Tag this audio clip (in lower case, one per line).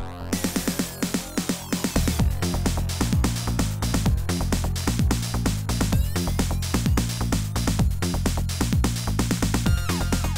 music
soundtrack music